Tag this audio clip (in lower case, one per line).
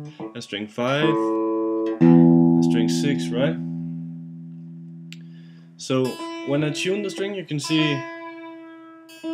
speech
music
guitar
acoustic guitar
plucked string instrument
musical instrument